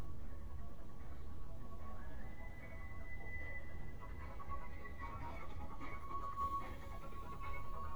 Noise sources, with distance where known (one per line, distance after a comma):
music from an unclear source, near